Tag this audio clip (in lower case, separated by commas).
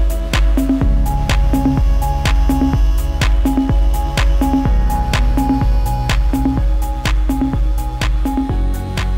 music